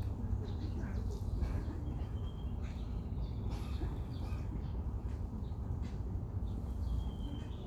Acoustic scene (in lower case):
park